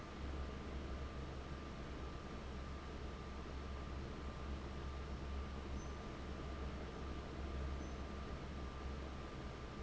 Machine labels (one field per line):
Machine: fan